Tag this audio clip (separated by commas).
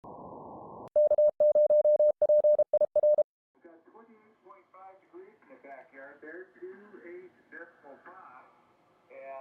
Speech, Radio